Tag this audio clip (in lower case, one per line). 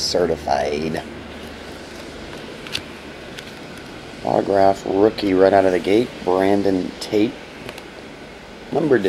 speech